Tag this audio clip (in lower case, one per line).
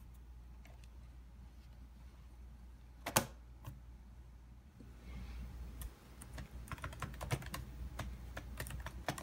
typing on computer keyboard